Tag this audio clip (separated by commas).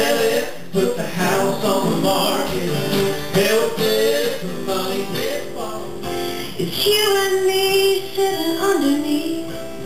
Female singing, Music, Country